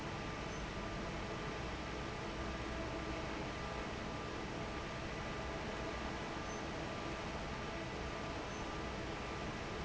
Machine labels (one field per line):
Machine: fan